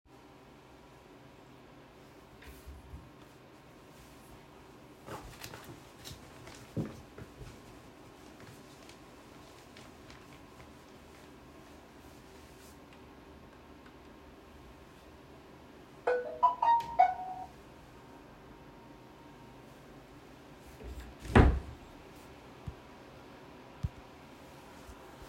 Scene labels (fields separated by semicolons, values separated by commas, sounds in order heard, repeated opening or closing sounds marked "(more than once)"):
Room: bedroom; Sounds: phone ringing, wardrobe or drawer